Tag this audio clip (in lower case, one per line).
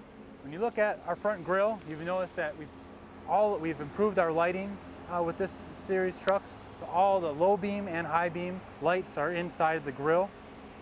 speech